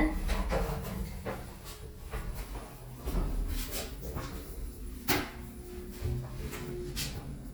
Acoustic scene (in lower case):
elevator